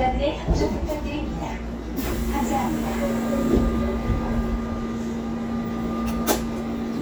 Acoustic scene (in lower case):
subway train